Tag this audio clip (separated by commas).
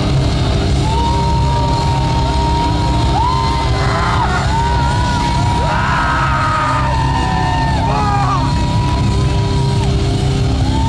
Crowd, Musical instrument, Heavy metal, Music, Rock music